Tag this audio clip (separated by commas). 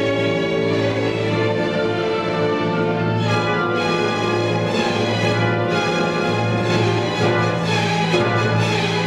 fiddle, Music, Musical instrument, Orchestra